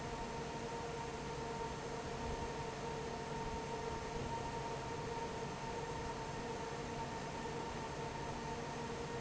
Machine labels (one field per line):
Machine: fan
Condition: normal